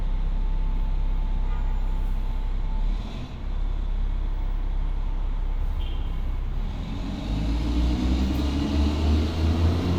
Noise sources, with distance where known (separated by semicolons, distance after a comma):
large-sounding engine, near; car horn, far